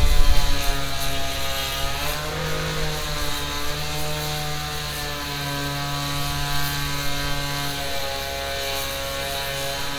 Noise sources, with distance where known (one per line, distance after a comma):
unidentified powered saw, near